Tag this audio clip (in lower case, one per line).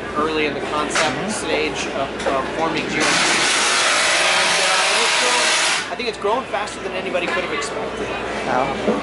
electric toothbrush
speech